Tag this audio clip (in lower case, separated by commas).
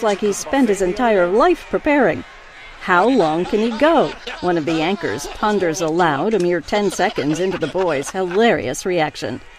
snicker, speech